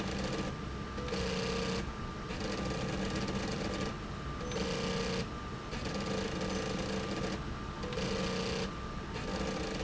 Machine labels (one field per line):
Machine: slide rail